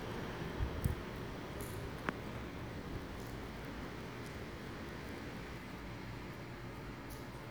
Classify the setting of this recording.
residential area